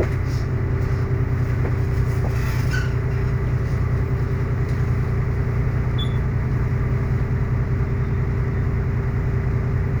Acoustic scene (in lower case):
bus